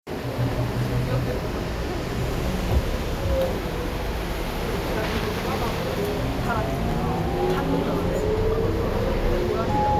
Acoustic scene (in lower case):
bus